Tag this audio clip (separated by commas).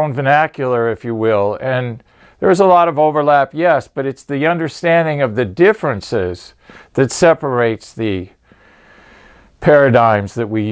Speech